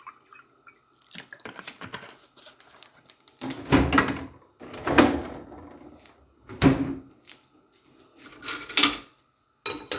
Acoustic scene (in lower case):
kitchen